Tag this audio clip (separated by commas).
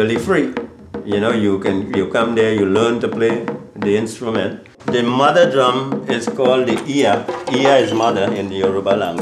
Percussion, Music, Wood block, Speech